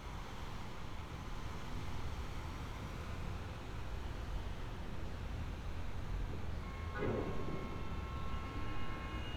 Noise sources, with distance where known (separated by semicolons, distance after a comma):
car horn